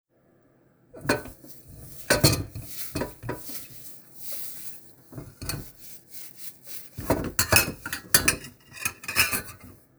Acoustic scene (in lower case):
kitchen